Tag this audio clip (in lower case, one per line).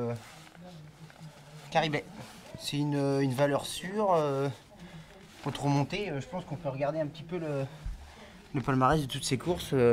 speech